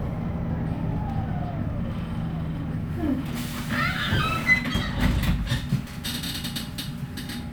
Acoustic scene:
bus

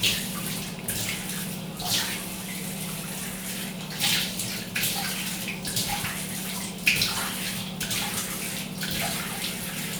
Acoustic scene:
restroom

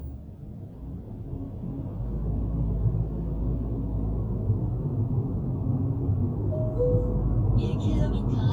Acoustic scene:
car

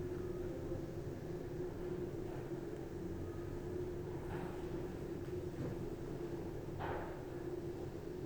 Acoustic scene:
elevator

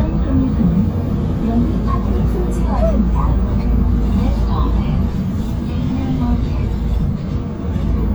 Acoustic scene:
bus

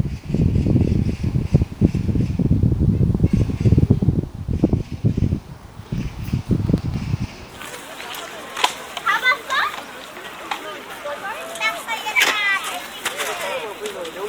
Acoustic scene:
park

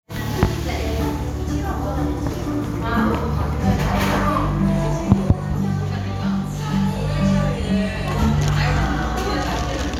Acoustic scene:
cafe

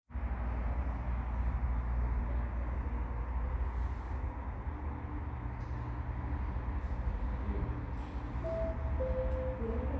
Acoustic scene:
elevator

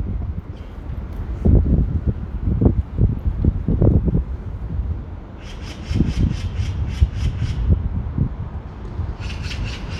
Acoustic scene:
residential area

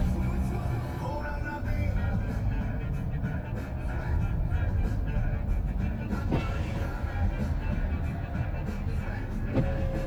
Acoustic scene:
car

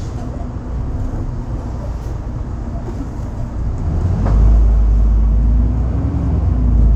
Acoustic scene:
bus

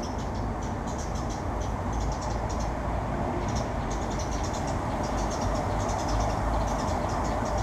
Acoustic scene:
residential area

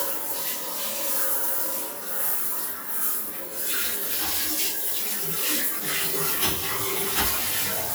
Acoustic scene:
restroom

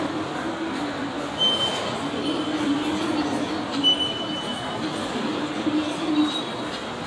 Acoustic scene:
subway station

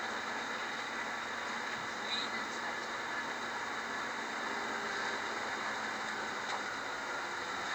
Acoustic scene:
bus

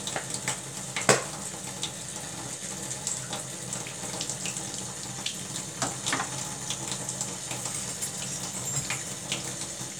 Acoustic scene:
kitchen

